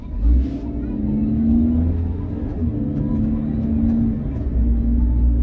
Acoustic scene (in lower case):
car